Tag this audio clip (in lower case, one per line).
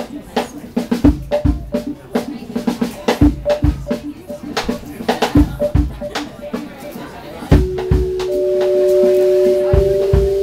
music
speech
independent music